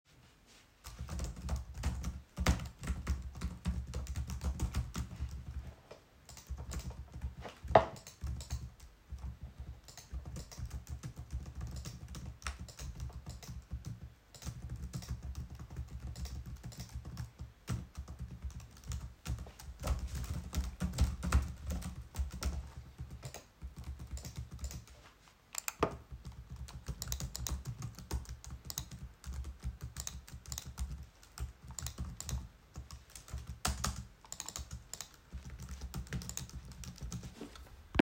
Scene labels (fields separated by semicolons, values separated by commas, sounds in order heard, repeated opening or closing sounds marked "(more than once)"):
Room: living room; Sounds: keyboard typing